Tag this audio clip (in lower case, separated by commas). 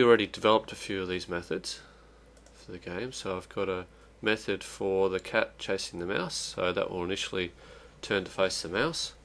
speech